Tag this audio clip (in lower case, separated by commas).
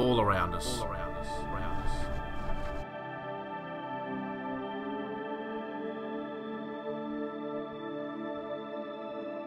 new-age music